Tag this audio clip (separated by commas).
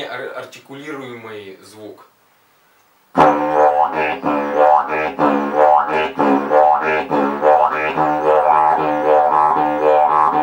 playing didgeridoo